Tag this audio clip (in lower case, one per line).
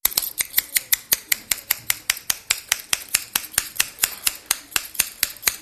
scissors
home sounds